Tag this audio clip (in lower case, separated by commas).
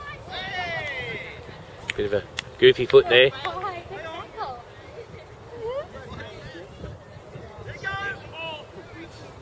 outside, rural or natural, speech